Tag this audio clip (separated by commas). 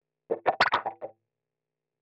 Plucked string instrument, Guitar, Music, Musical instrument